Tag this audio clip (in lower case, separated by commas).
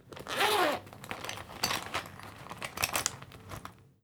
home sounds, zipper (clothing)